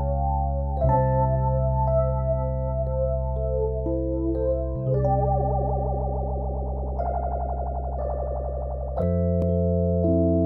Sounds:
synthesizer, music

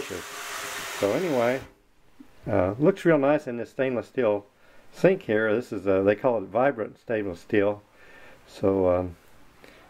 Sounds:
water tap, speech

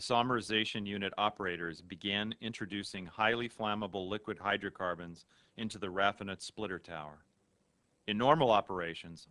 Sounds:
speech

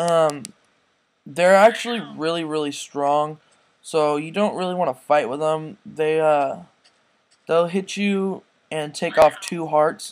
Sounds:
speech

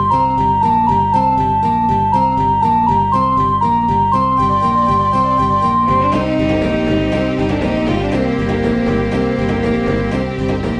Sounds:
theme music, music

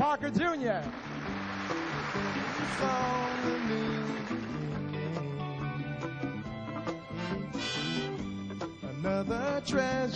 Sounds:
music, speech

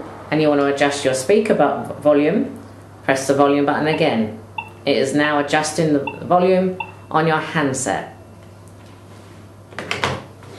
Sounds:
speech

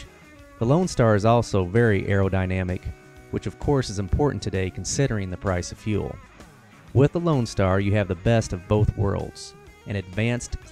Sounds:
music, speech

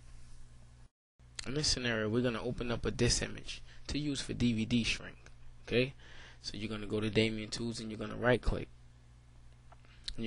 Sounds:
speech

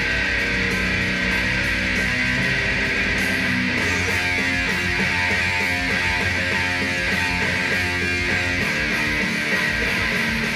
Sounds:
electric guitar, plucked string instrument, musical instrument, music, bass guitar, guitar

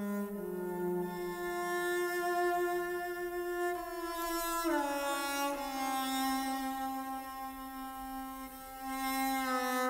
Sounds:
music, bowed string instrument

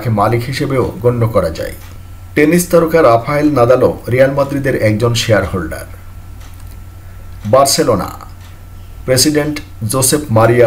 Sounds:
striking pool

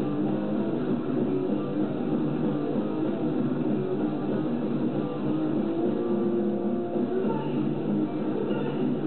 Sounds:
music

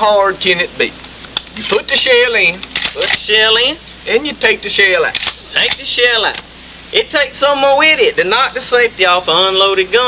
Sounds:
speech

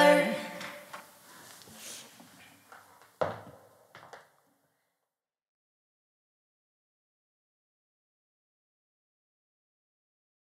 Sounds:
inside a small room, silence

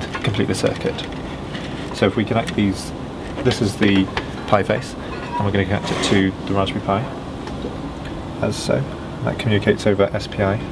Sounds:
speech

